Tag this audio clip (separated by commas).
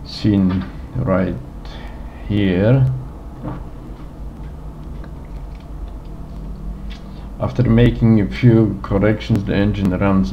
Speech